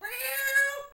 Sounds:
meow, cat, domestic animals, animal

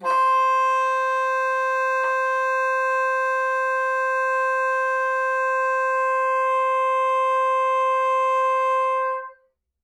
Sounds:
woodwind instrument, musical instrument, music

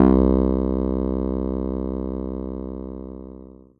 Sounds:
musical instrument, keyboard (musical), music

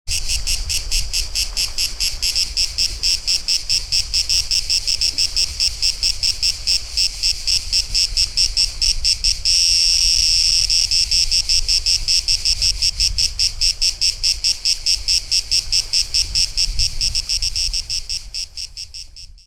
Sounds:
wild animals, animal, insect

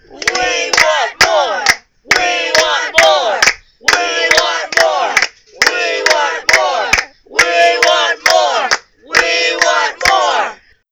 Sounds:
cheering, human group actions

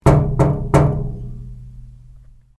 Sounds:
home sounds, knock, door

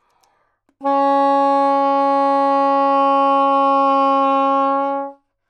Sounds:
musical instrument, wind instrument, music

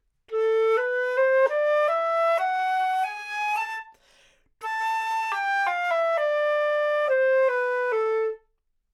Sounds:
woodwind instrument, music, musical instrument

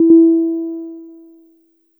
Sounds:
musical instrument, piano, music, keyboard (musical)

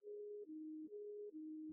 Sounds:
alarm, siren

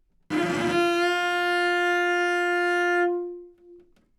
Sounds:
music, musical instrument, bowed string instrument

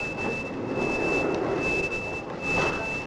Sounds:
vehicle, train, rail transport

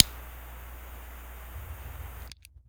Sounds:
fire

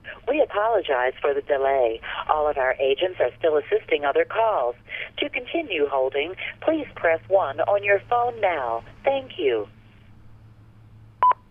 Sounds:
telephone, alarm

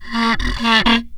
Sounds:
wood

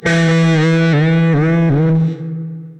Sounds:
musical instrument, guitar, electric guitar, plucked string instrument, music

